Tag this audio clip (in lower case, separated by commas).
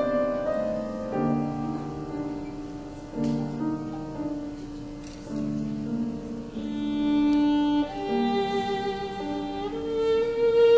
fiddle, music, musical instrument